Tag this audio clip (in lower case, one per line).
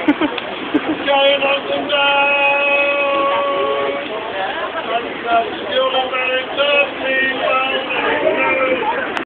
male singing
speech